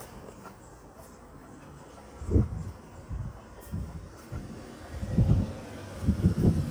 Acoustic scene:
residential area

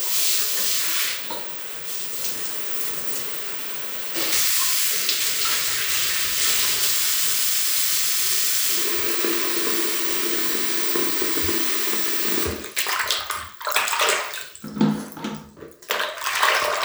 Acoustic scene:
restroom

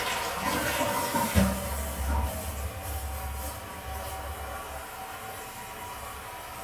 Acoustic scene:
restroom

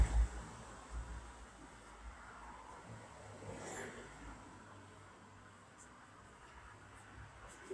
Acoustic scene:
street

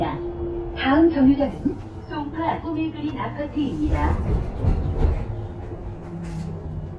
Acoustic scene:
bus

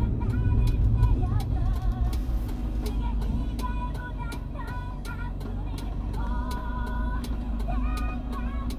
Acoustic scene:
car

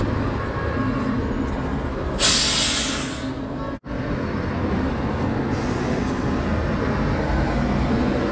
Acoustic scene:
residential area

